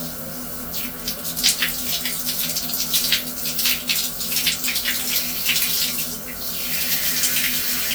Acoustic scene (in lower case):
restroom